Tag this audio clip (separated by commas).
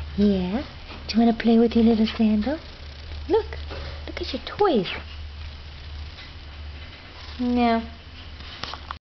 Speech